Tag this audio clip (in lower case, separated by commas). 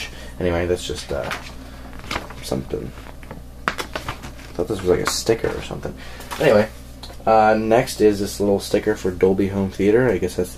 speech, inside a small room